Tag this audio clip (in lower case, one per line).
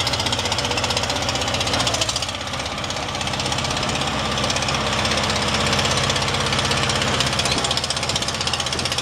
vehicle